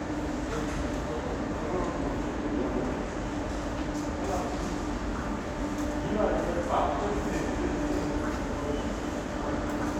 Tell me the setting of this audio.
subway station